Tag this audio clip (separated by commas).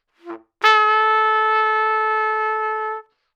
Brass instrument, Trumpet, Music, Musical instrument